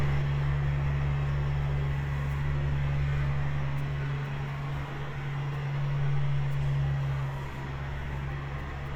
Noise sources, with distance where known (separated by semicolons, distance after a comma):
medium-sounding engine, near